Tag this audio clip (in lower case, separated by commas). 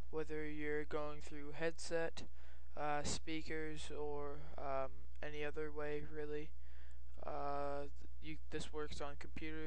speech